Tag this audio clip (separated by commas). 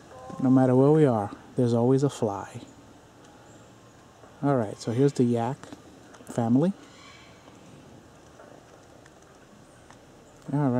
Speech